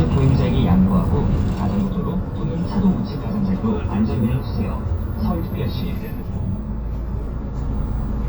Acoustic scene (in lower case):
bus